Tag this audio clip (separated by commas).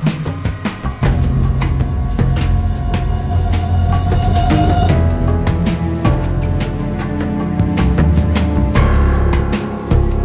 Music